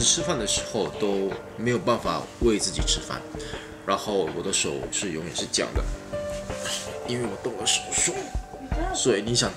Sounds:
Speech, Music

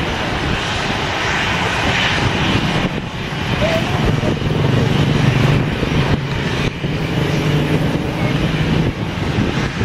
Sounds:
outside, urban or man-made, Aircraft, airplane, Aircraft engine, Vehicle

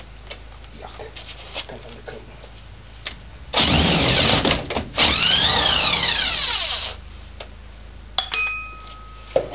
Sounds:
inside a large room or hall, Speech

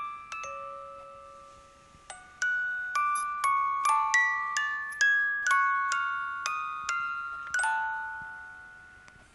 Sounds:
Music

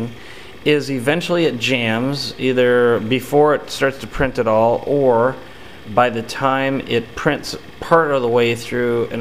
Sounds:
Speech

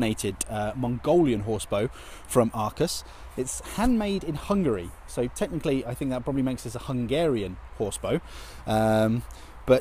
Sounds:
Speech

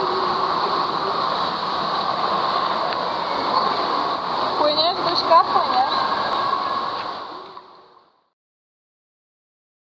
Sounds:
Speech, Water

